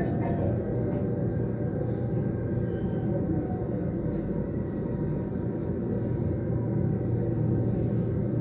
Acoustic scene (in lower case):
subway train